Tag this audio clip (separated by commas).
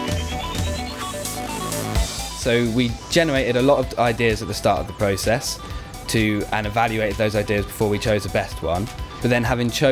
Music, Speech